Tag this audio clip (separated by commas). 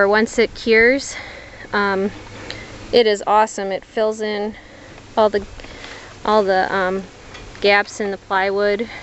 Speech